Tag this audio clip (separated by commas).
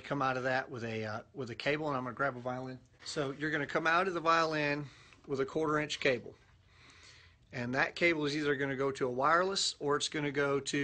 Speech